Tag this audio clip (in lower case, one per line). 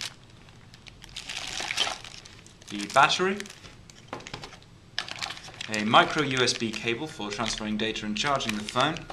speech